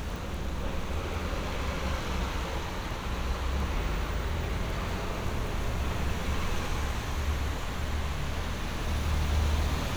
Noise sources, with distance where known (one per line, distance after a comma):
large-sounding engine, near